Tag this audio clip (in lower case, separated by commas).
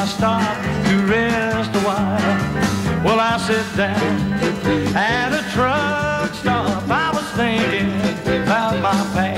country, bluegrass, music